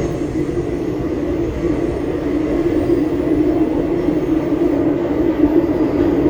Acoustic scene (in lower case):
subway train